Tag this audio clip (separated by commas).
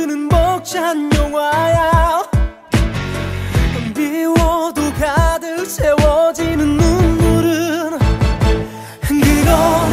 Music